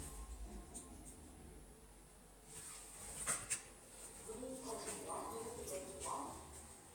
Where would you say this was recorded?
in an elevator